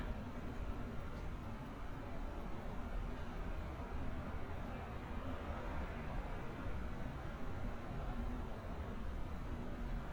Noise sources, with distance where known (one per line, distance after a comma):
background noise